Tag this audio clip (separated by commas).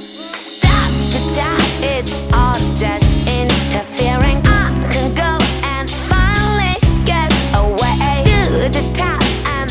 Music